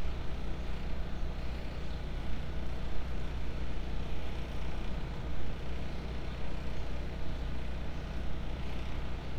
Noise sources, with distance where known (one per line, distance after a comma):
engine of unclear size, far